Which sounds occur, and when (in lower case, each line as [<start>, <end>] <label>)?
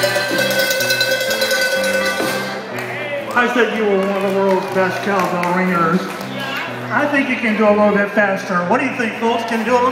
[0.00, 2.53] cowbell
[0.00, 9.91] music
[2.13, 2.21] tap
[2.70, 9.91] crowd
[6.25, 6.74] human sounds
[6.50, 6.60] clapping
[6.87, 9.91] male speech
[9.41, 9.50] generic impact sounds